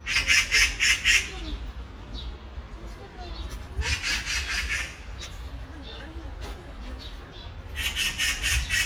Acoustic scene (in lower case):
residential area